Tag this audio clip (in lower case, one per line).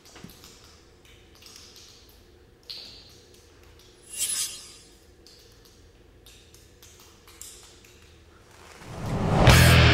music